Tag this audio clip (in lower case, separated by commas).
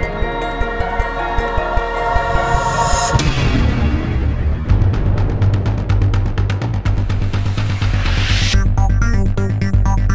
music